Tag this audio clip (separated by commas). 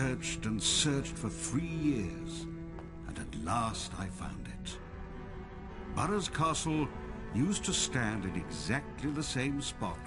Music, Speech